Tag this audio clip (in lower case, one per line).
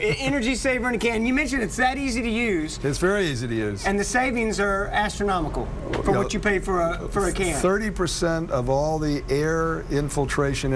speech